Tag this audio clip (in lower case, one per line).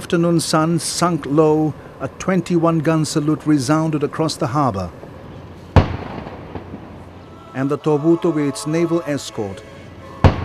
outside, urban or man-made
music
speech
firecracker